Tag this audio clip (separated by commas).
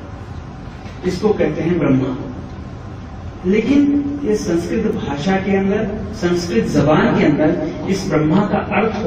Speech